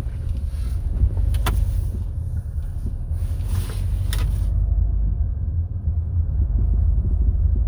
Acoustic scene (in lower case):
car